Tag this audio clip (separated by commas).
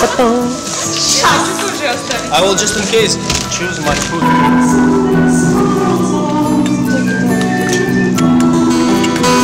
Music, Theme music, Speech